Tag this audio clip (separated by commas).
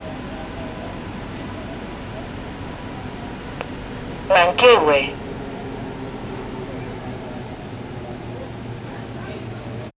metro, Vehicle, Rail transport